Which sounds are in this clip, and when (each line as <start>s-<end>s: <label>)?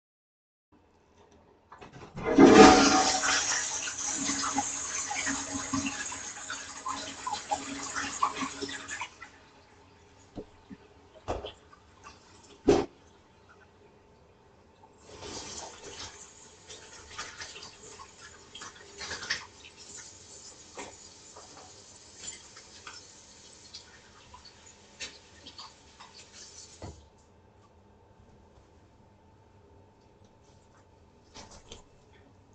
1.9s-9.4s: toilet flushing
11.1s-27.2s: running water
12.5s-27.2s: footsteps
31.2s-31.9s: light switch